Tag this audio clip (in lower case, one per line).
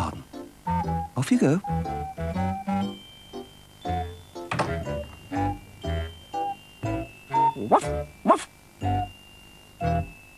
speech
music